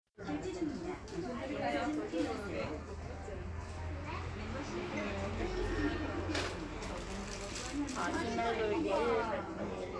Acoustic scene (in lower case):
crowded indoor space